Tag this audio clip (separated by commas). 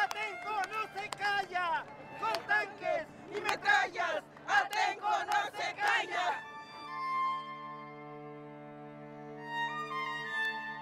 Music, Speech